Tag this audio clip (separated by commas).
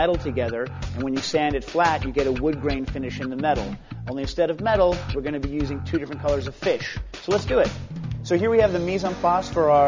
Music, Speech